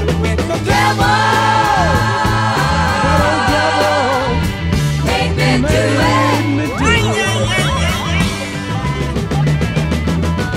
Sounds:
Hip hop music, Music

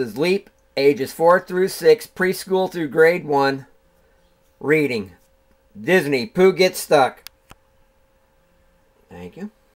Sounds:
Speech

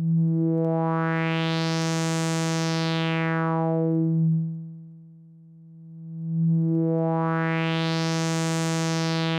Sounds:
Synthesizer, Music

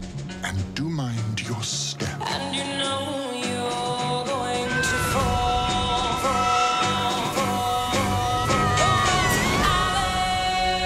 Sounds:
Music, Speech

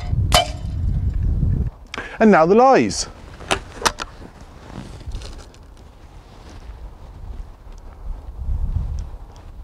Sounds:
Speech, outside, rural or natural

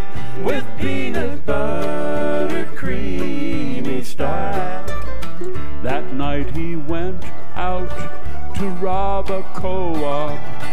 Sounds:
Singing, Bluegrass, Music

